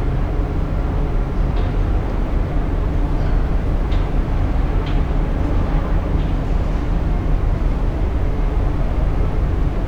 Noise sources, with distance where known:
large-sounding engine, near

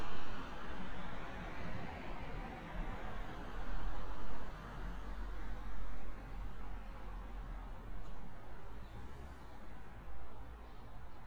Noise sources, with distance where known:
background noise

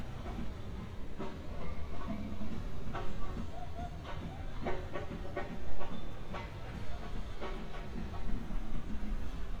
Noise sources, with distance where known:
music from an unclear source

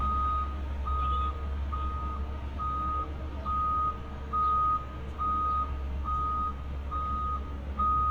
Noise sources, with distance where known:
unidentified alert signal, near

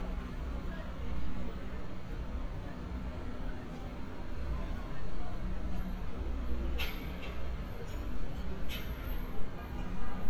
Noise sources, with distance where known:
car horn, far
person or small group talking, far

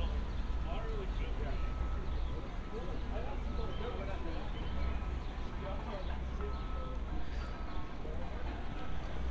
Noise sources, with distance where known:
reverse beeper, far
person or small group talking

